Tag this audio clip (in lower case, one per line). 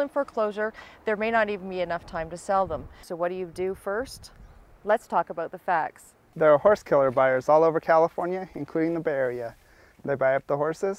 speech